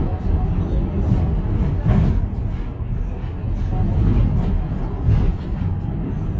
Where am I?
on a bus